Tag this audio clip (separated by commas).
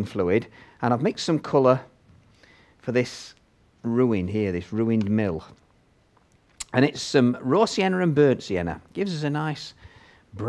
Speech